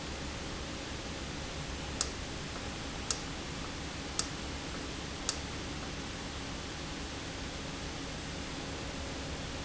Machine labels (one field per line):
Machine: valve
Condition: normal